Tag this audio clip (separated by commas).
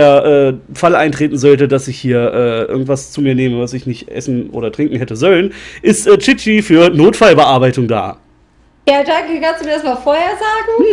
Speech